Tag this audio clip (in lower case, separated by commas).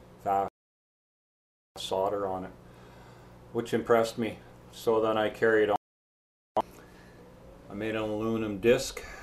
speech